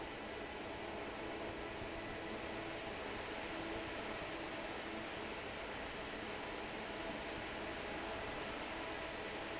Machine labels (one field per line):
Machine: fan